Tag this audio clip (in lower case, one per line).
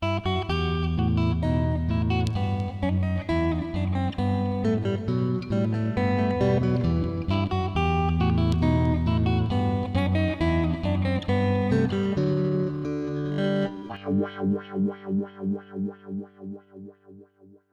musical instrument
music
plucked string instrument
guitar